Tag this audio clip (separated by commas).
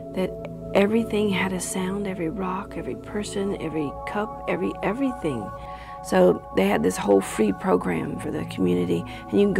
Speech, Music